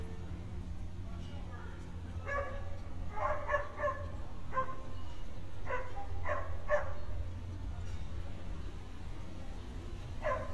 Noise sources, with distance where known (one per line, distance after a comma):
dog barking or whining, near